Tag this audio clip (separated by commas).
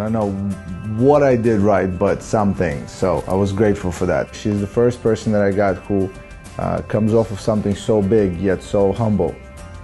Speech, Music